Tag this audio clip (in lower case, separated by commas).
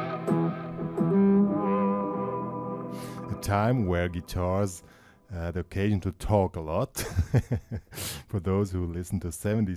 music, speech, plucked string instrument, echo, musical instrument, funk, psychedelic rock, guitar